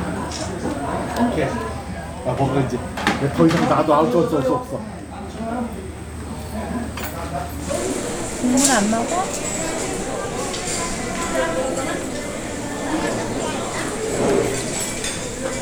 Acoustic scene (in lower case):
restaurant